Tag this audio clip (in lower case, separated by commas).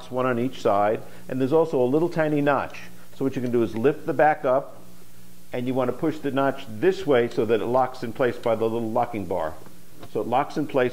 speech